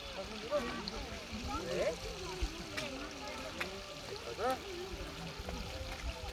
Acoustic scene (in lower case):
park